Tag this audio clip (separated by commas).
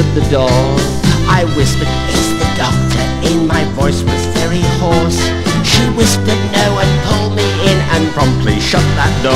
Music